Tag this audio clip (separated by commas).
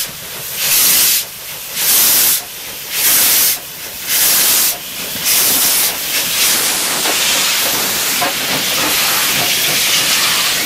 Train, train wagon, Rail transport, Vehicle